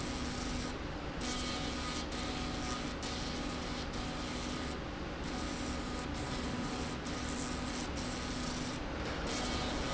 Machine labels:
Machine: slide rail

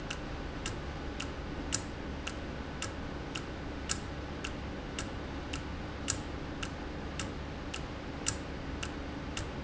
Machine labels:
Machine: valve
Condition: normal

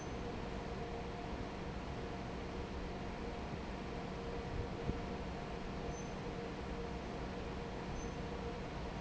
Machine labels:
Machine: fan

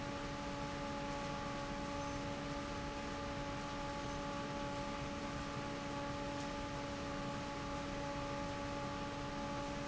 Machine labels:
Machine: fan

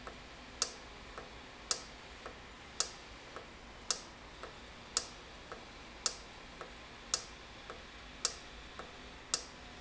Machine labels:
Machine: valve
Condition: normal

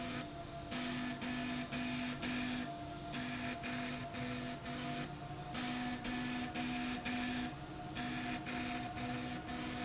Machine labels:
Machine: slide rail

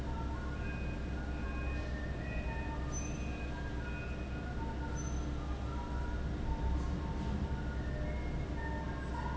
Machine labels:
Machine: fan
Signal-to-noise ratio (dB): -6 dB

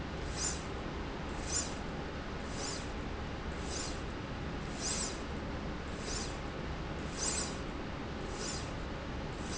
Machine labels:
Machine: slide rail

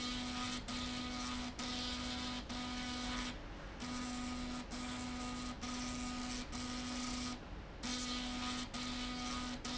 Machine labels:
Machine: slide rail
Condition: abnormal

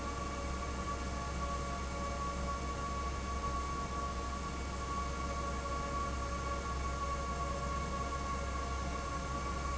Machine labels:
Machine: fan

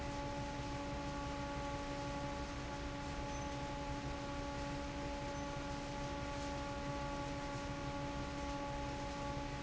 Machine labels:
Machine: fan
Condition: normal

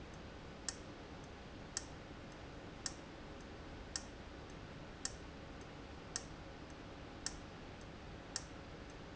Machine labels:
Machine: valve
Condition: abnormal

